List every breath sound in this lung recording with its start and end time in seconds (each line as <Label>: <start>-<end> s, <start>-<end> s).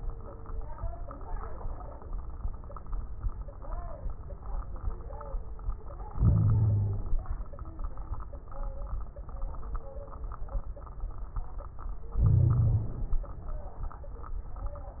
Inhalation: 6.16-7.21 s, 12.18-13.23 s
Wheeze: 6.16-7.21 s, 12.18-12.93 s